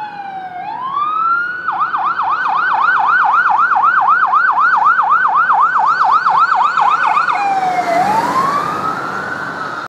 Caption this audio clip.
Fire truck siren is playing while on the road